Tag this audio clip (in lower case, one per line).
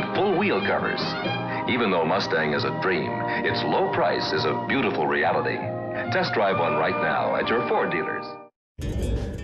music
speech